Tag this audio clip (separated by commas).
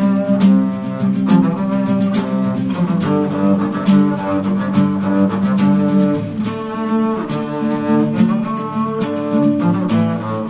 playing double bass